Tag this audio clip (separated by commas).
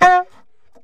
Musical instrument, woodwind instrument, Music